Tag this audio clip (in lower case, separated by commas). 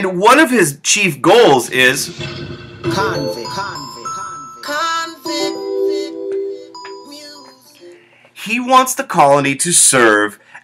music, glockenspiel, speech